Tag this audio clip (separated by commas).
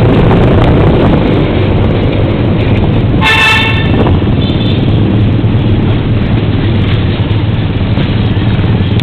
Vehicle, Speech, Toot